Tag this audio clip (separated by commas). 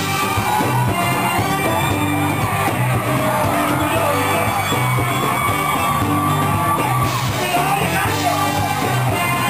Shout, Music, Blues